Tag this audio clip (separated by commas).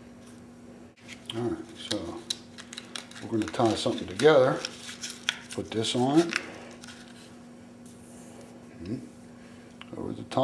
Speech, inside a small room